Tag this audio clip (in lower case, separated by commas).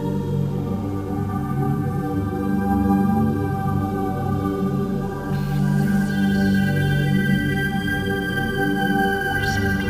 rhythm and blues, music